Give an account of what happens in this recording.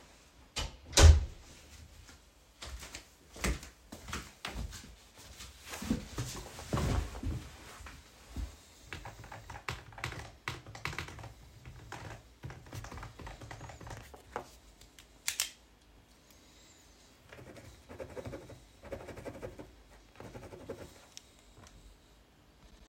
I entered my room and started typing on the keyboard. After that, I picked up a pen and clicked it. I then began writing.